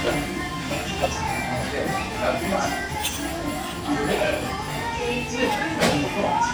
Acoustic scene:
restaurant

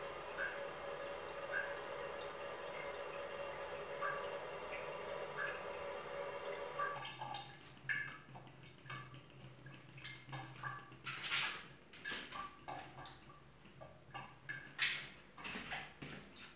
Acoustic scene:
restroom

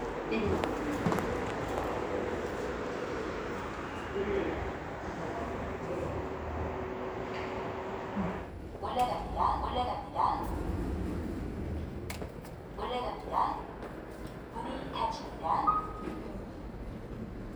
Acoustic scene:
elevator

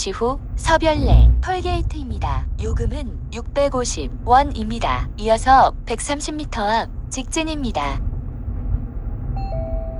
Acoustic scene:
car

